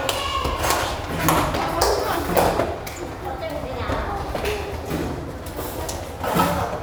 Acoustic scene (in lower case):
restaurant